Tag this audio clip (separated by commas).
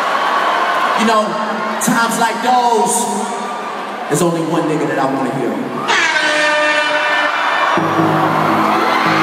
Music, Crowd, Speech